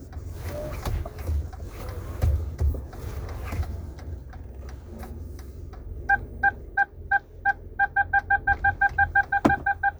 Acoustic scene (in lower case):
car